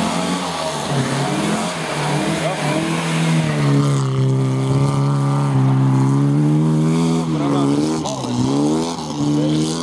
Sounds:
speech

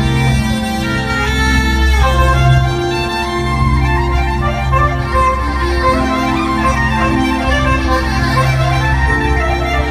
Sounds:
jazz, music

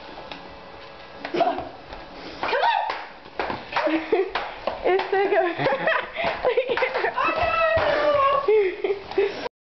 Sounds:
speech

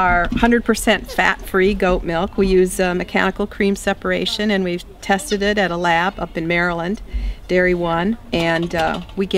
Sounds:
speech

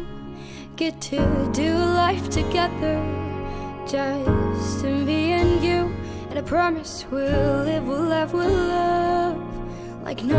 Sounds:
tender music, music

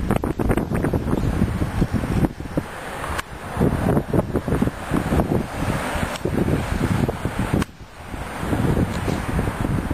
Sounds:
wind noise (microphone)

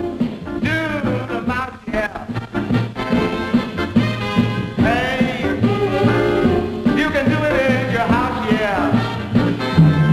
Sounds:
music

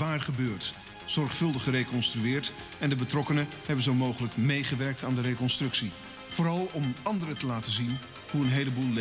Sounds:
speech, music

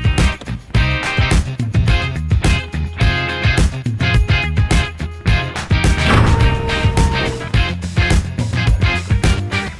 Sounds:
music

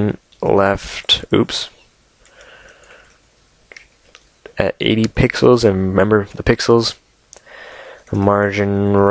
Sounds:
speech

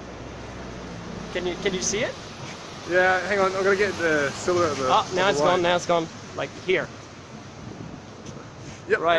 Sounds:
speech

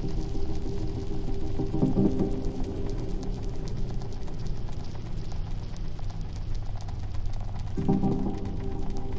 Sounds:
music, trickle

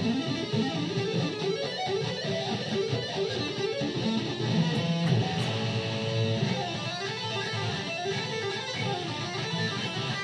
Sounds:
electric guitar, musical instrument, plucked string instrument, music, guitar

